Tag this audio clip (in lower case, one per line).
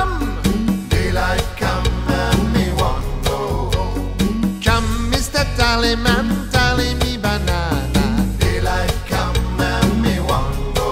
music